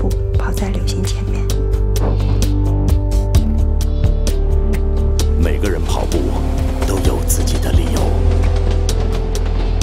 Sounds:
Speech, Music

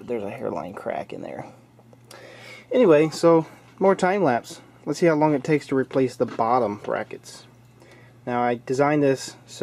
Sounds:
Speech

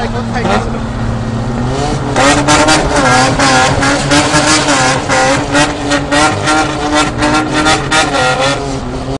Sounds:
Speech

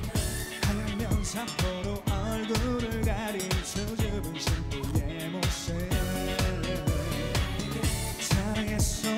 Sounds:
Music

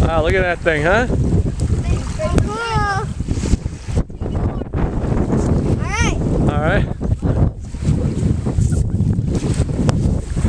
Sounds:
Speech

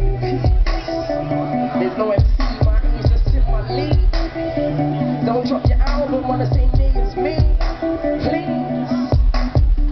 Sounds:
Music, Speech

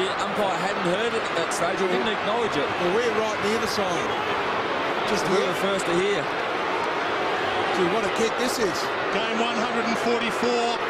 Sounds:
Speech

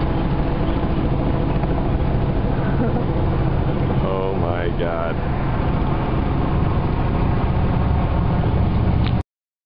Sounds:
Vehicle, Car passing by, Speech, Car

